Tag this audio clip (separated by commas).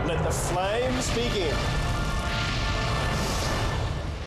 Music, Speech